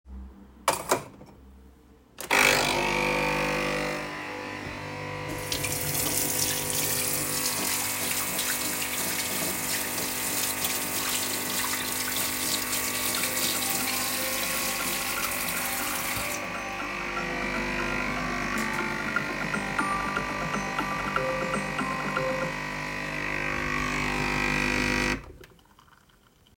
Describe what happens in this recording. I placed a cup and started coffee machine. At the same time, I started washing my hands. While I was doing it, my phone started ringing.